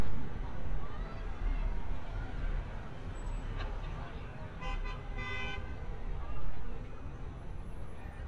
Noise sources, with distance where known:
car horn, near; person or small group talking, far

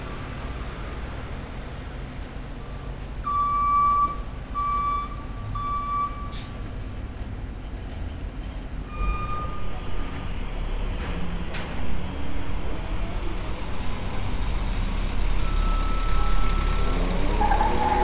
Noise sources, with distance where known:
large-sounding engine; reverse beeper

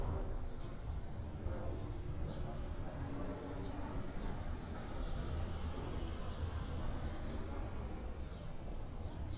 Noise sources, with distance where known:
background noise

